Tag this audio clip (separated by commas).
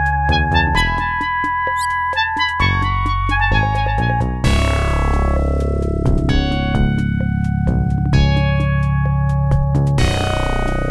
Music